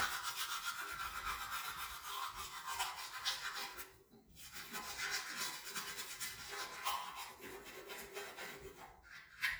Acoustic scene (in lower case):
restroom